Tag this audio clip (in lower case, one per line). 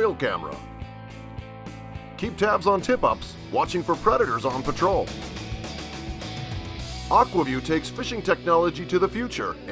music
speech